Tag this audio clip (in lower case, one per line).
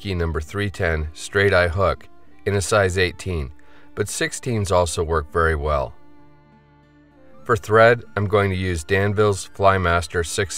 speech
music